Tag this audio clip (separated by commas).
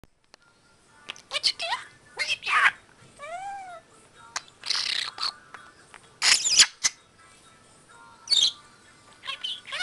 Domestic animals, Speech, Bird, Music